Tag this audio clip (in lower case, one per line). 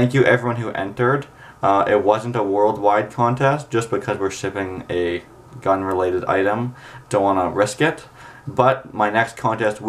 speech